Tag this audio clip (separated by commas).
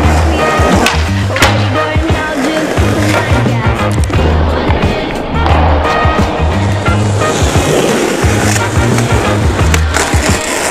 Music, Skateboard